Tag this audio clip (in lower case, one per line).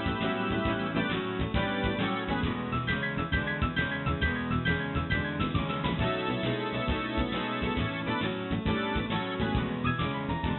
music